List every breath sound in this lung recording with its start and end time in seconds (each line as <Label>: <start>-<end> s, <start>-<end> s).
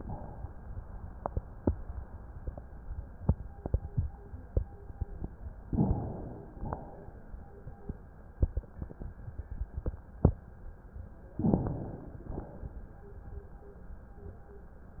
Inhalation: 5.69-6.60 s, 11.39-12.31 s
Exhalation: 6.60-7.30 s, 12.31-12.92 s